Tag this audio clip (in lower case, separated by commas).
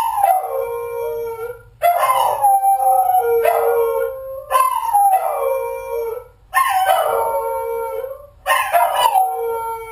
dog, animal, yip